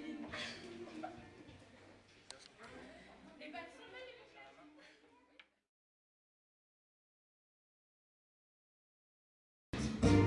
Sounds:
music, speech

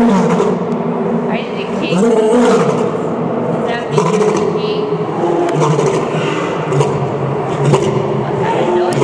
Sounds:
lions roaring

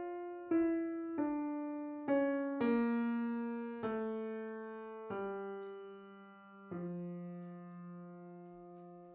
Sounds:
piano, keyboard (musical)

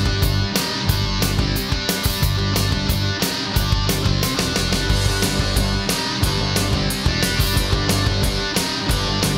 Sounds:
music

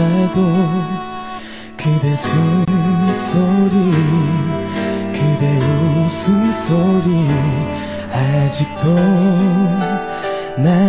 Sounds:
music, male singing

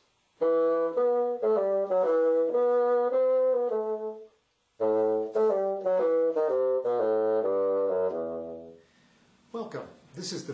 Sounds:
playing bassoon

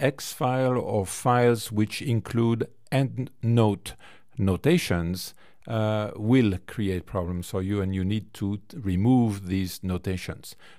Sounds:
speech

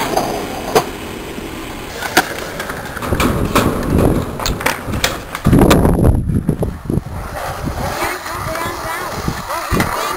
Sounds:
skateboarding, skateboard, speech

